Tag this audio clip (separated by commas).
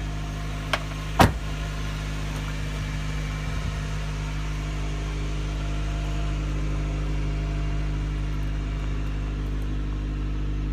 Medium engine (mid frequency), Car, Vehicle